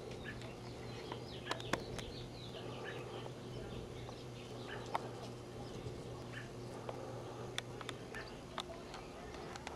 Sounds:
animal

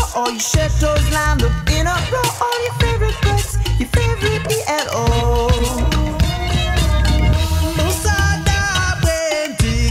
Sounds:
music
afrobeat
music of africa

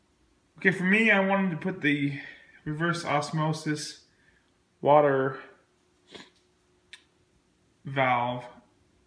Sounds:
speech

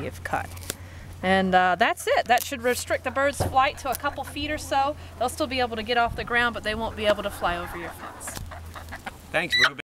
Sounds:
speech

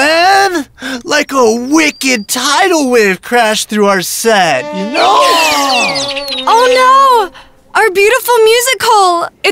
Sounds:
speech
music

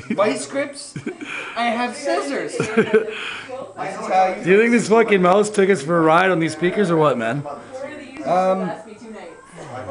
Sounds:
speech

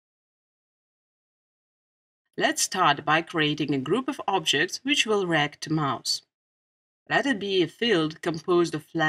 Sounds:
speech

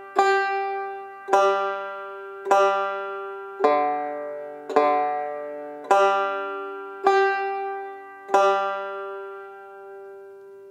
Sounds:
playing banjo

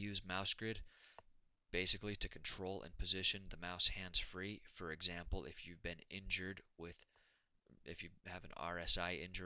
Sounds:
speech

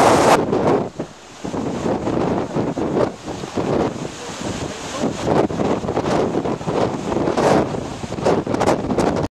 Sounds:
wind noise
speech
wind noise (microphone)

